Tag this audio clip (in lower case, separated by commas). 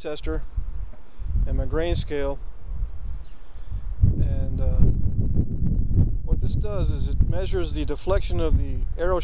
speech